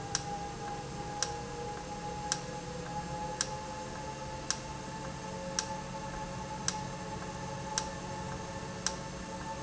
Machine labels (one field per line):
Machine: valve